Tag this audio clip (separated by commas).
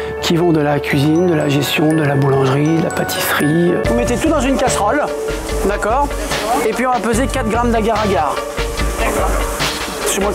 Music, Speech